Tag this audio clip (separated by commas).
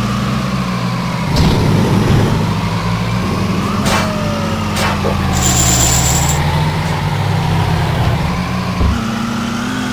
Race car